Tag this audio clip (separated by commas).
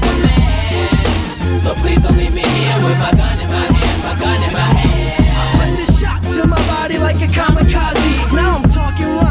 Music